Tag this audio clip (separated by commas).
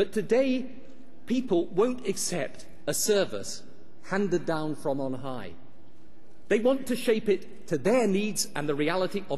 Speech, man speaking, monologue